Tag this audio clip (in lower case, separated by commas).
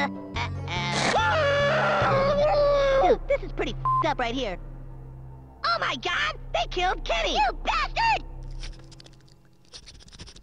speech, music